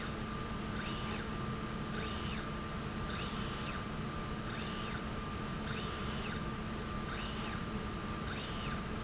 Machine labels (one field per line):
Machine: slide rail